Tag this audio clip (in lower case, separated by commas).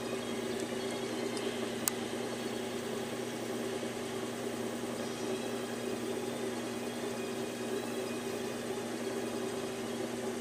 music